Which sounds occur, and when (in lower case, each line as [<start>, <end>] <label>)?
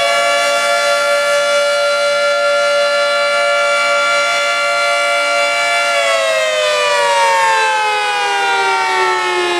[0.01, 9.55] siren